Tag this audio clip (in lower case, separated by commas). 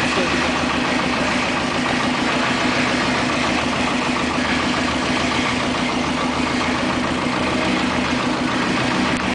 vehicle, boat